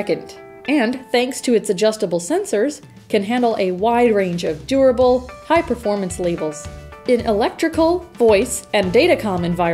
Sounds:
speech, music

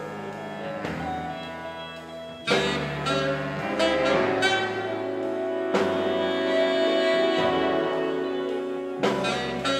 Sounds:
music, jazz

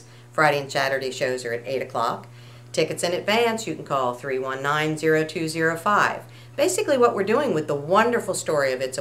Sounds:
speech

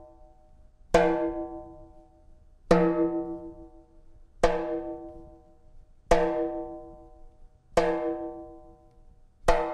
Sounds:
musical instrument, music, percussion, drum

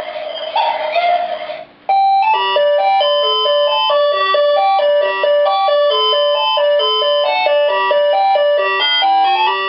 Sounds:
tick-tock, music

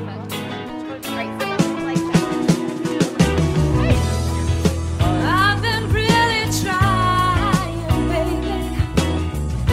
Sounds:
speech, music

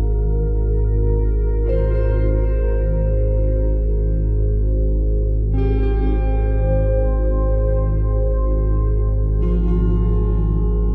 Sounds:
new-age music, music

